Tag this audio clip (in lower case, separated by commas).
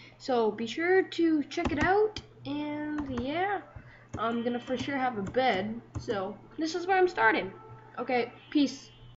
speech, bleat